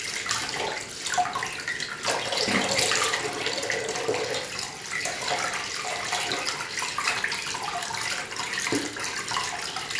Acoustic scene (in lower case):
restroom